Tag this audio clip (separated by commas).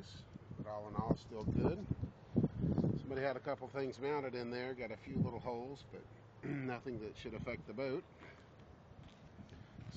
Speech